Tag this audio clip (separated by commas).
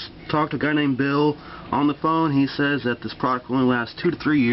Speech